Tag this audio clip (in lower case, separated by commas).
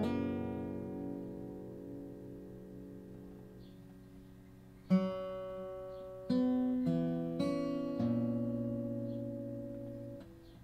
musical instrument, music, guitar